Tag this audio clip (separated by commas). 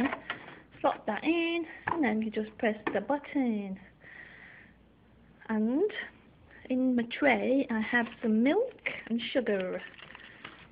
Speech